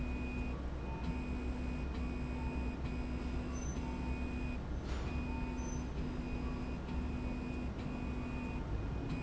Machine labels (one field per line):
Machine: slide rail